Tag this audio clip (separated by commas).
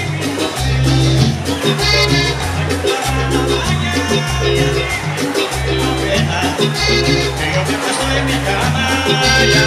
Music